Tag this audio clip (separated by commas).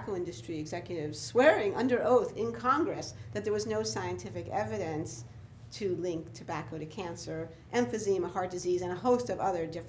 Speech